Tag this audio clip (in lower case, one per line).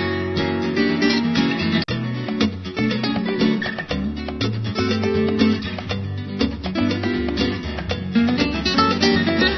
music